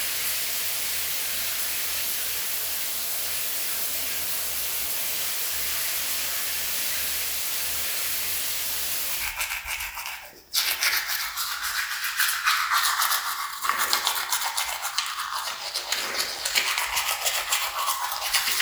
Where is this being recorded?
in a restroom